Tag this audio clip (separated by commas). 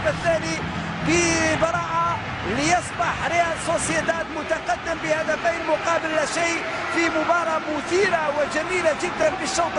Speech